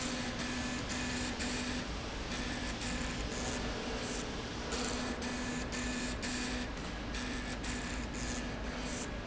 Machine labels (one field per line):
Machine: slide rail